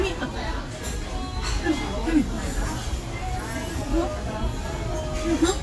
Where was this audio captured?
in a restaurant